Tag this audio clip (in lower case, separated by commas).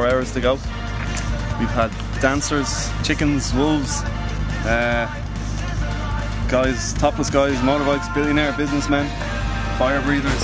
music, speech